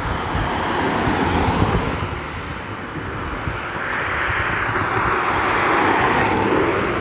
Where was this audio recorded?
on a street